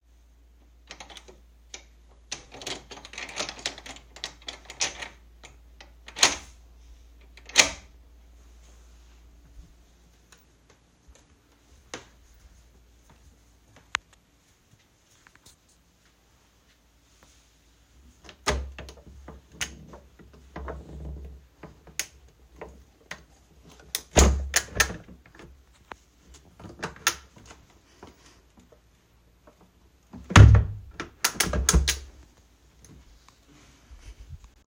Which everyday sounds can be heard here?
keys, footsteps, door, window